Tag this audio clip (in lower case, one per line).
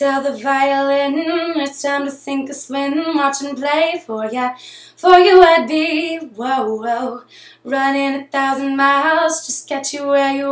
female singing